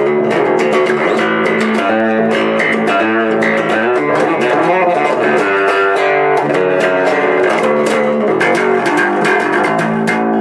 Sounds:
Music, Electric guitar, Strum, Musical instrument, Plucked string instrument

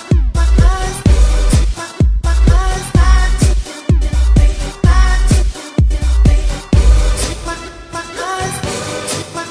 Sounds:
House music, Music

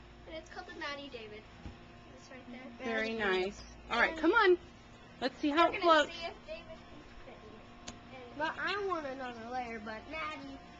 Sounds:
Speech

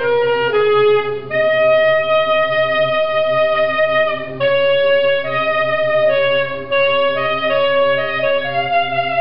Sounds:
Clarinet, Music, Brass instrument, Wind instrument

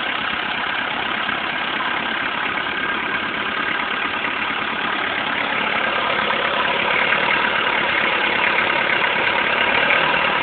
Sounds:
Engine, Idling

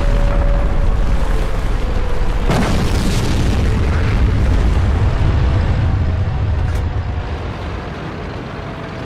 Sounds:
Vehicle

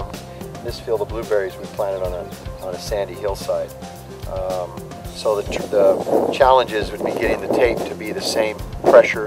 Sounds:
Speech, Music

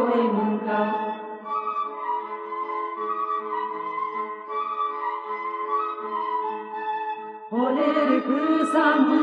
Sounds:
Music

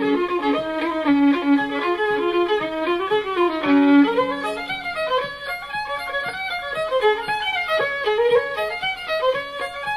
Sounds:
Violin, Musical instrument, Music

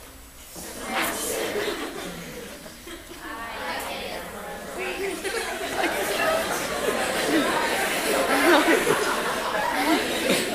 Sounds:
Female speech, Speech, Conversation

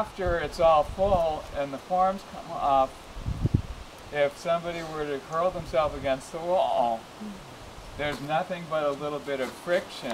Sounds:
outside, rural or natural, Speech

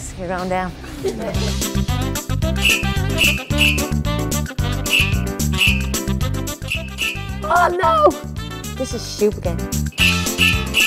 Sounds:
Music, Speech

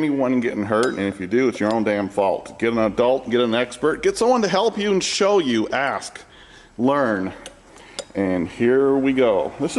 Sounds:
Speech

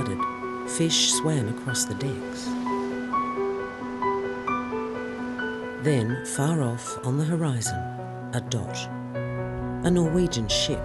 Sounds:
Speech, Music

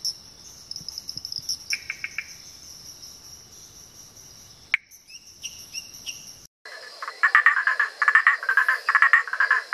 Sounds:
frog croaking

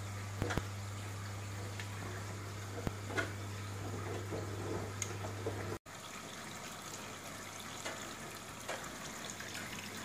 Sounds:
Water

